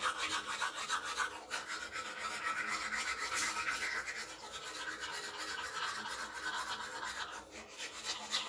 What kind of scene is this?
restroom